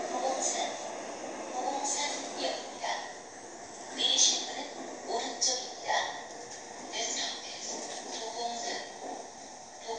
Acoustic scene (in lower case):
subway train